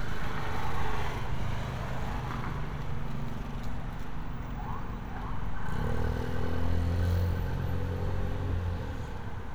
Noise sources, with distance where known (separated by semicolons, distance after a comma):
small-sounding engine, near